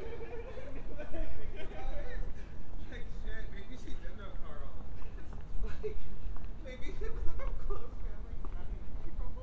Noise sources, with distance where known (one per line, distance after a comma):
person or small group talking, near